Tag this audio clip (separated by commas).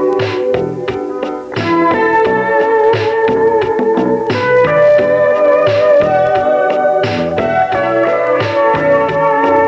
Music